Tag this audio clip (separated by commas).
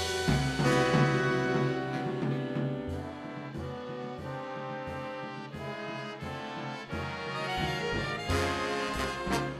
Orchestra, Music